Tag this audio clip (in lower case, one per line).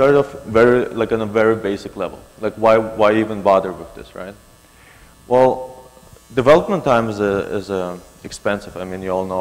speech